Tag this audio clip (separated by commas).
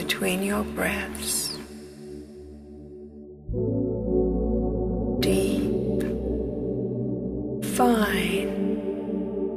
Music, Speech, New-age music